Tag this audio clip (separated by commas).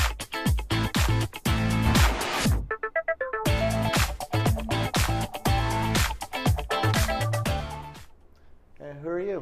Music, Speech